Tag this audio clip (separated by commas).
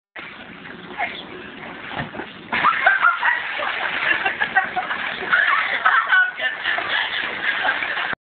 Speech